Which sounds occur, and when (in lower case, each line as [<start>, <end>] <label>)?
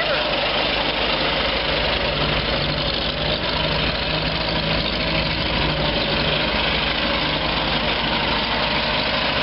[0.01, 9.42] vehicle